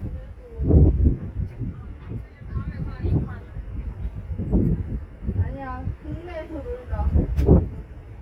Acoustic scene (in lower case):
street